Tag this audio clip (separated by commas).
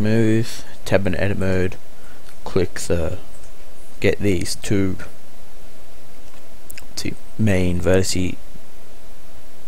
Speech